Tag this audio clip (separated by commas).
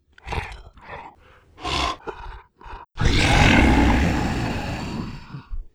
Animal